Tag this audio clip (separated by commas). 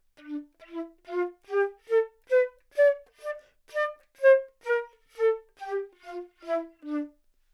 woodwind instrument, Music, Musical instrument